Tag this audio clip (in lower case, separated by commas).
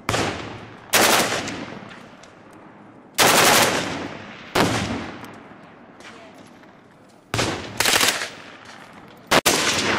machine gun shooting